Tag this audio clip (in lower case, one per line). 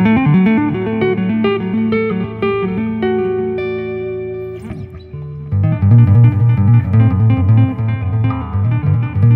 tapping guitar